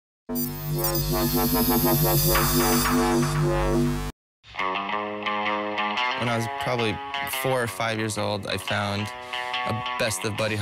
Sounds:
music, speech

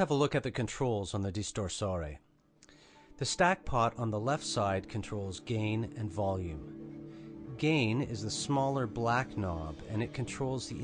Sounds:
musical instrument, speech, music

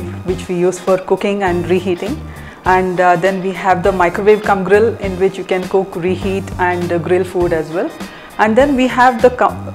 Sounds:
speech, music

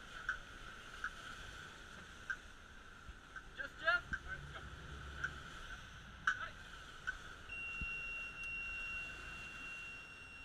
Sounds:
speech

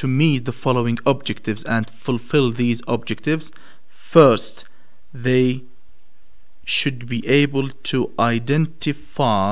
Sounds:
speech

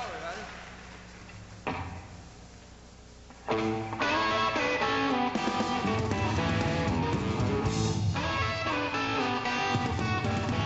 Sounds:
music, speech

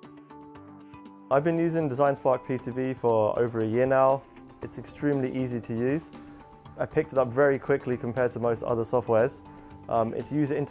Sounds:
music, speech

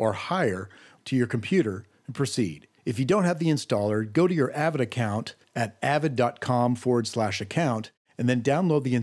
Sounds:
speech

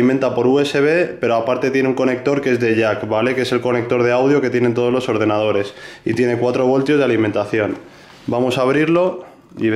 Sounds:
speech

